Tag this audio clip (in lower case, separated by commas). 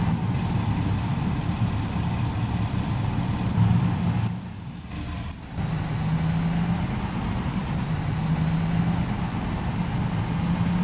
driving buses, vehicle, bus